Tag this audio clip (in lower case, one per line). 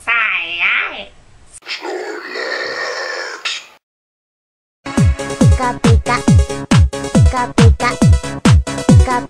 music